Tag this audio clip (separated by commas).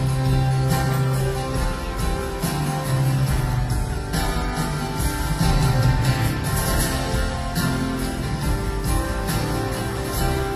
Music, Musical instrument